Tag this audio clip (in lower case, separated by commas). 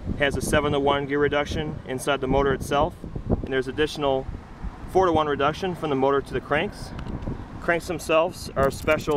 speech